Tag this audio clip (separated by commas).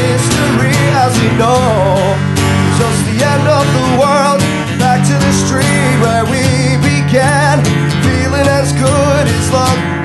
Music